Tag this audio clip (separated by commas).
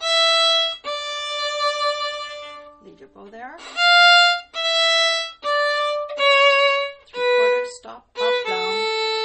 Musical instrument, Speech, Violin, Music